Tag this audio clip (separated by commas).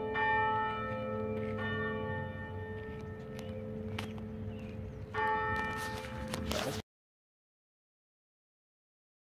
church bell ringing